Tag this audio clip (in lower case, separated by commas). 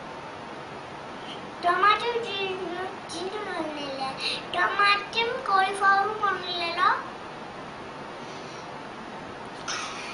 speech